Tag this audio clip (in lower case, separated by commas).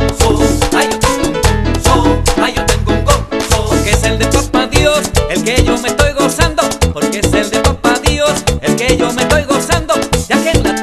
music